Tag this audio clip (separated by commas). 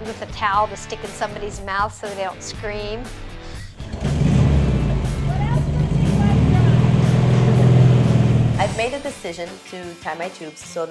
Music, revving, Speech